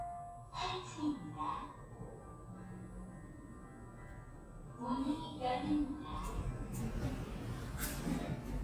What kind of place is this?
elevator